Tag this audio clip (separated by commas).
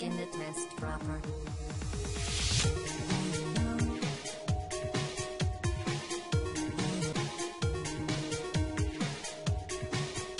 Speech, Music